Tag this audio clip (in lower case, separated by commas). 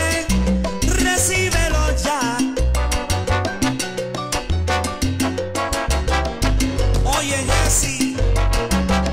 music, music of latin america, salsa music